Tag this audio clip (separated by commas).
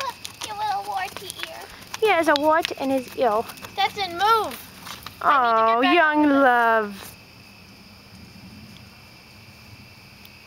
Animal, Horse, Speech, Clip-clop